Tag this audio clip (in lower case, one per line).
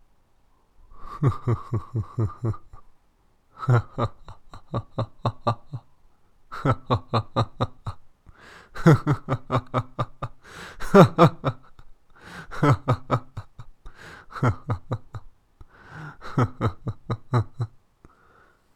human voice
laughter